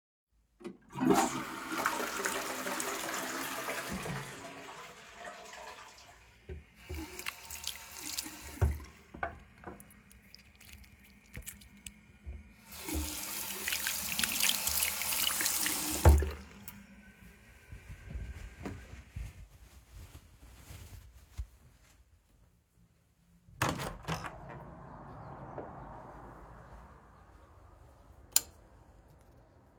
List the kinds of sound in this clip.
toilet flushing, running water, door, window, light switch